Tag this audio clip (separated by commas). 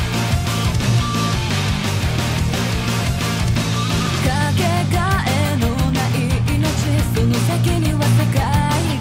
Music